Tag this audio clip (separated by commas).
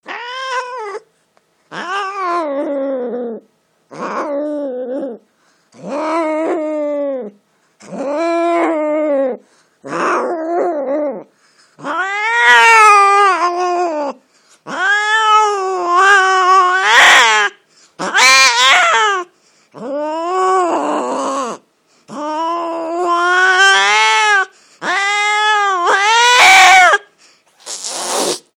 Animal, Cat, Domestic animals